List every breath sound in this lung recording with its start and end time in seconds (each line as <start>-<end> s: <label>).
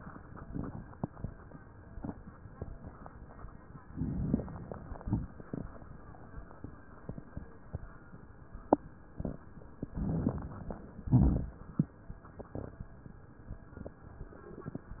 3.97-4.99 s: inhalation
3.97-4.99 s: crackles
5.01-5.64 s: exhalation
5.01-5.64 s: crackles
9.90-10.93 s: inhalation
9.90-10.93 s: crackles
11.04-11.67 s: exhalation
11.04-11.67 s: crackles